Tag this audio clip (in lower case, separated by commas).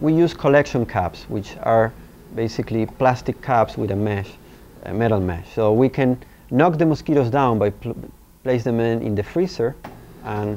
speech